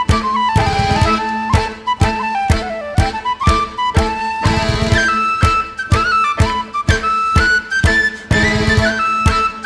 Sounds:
Music

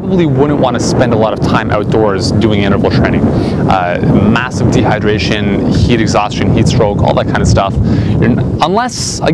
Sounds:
Speech, outside, urban or man-made, Male speech

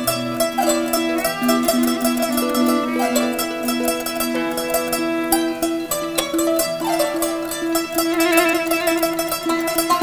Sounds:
playing violin, Musical instrument, Music, Violin

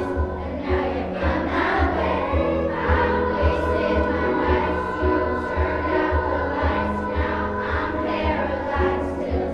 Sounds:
Music

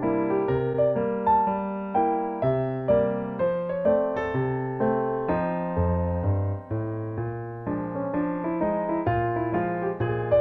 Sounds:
Music, Electric piano

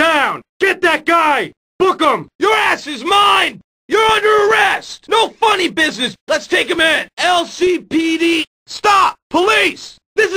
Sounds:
Speech

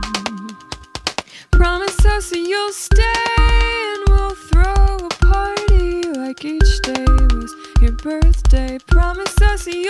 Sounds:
Music

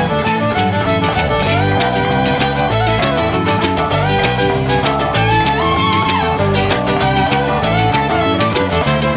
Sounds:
Music, fiddle, Musical instrument

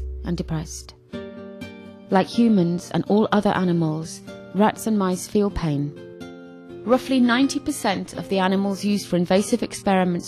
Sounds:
Music, Speech

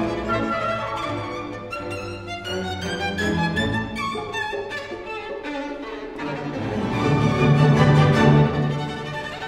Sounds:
Music, Violin, Musical instrument

